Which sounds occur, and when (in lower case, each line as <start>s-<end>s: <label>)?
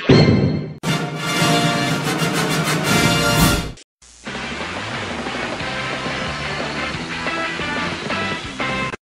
0.0s-3.8s: music
4.0s-9.0s: music